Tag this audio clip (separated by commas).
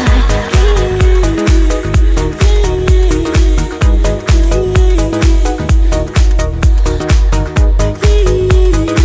Dance music